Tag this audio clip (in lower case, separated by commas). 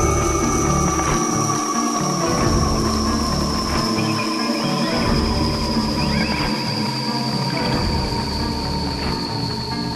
music